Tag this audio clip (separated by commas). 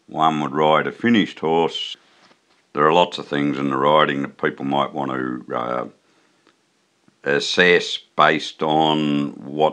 Speech